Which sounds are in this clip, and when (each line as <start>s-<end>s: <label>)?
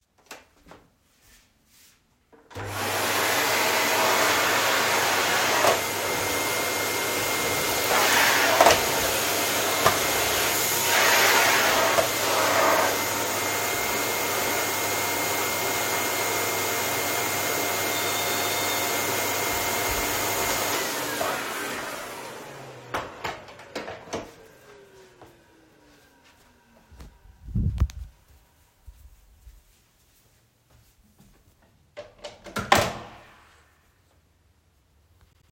2.3s-25.2s: vacuum cleaner
18.0s-19.5s: bell ringing
27.0s-28.2s: footsteps
28.8s-32.5s: footsteps
32.0s-33.5s: door